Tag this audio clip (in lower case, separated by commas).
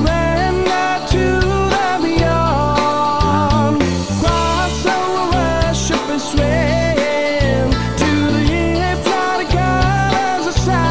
music